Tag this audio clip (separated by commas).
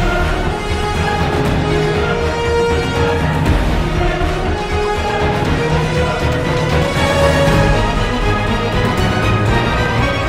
Music